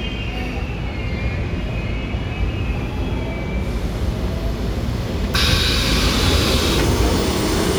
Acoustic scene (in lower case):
subway train